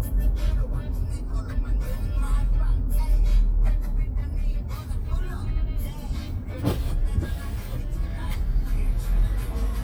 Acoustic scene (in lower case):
car